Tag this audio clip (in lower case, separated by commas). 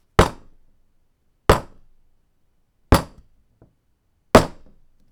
tools, hammer, wood